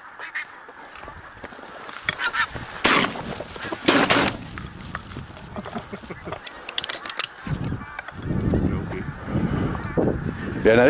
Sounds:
Duck, Bird, Goose, Speech

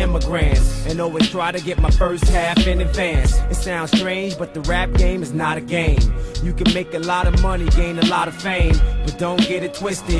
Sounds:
Music

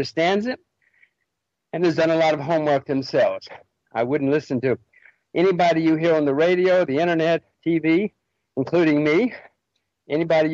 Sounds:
Speech

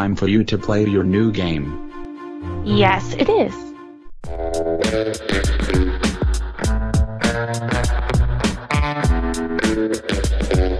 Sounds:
Music, Speech

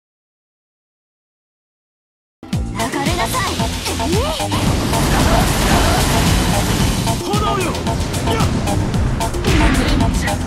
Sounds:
Music, Speech

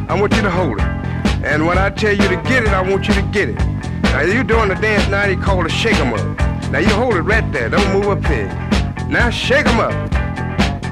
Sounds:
Musical instrument, Blues, Music, Plucked string instrument, Speech, Strum, Guitar

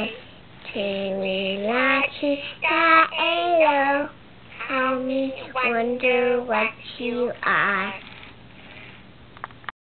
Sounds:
Child singing

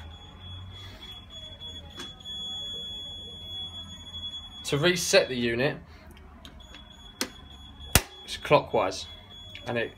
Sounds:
Music, Fire alarm, Speech

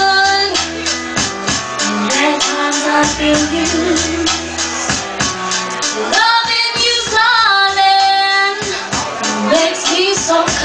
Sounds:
Music, Music of Asia, Speech

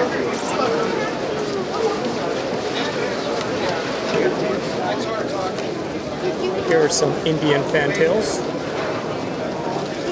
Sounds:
Bird, Speech, Coo, Animal

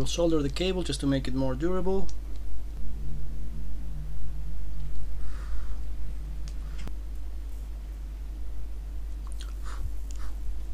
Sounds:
Speech, inside a small room

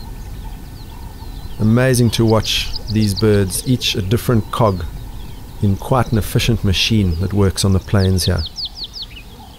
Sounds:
Chirp, Bird, bird song

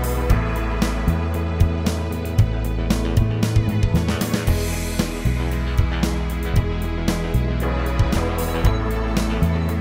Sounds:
Music

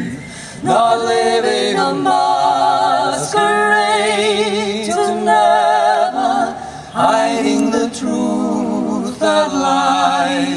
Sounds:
Music, Male singing

